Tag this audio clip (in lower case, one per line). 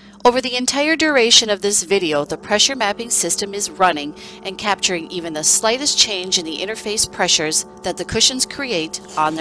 speech